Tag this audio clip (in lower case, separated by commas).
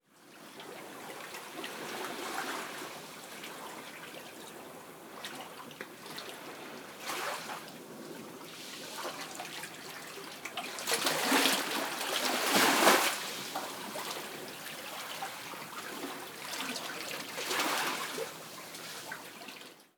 waves, water, ocean